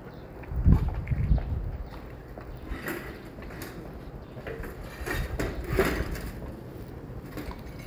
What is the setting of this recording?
residential area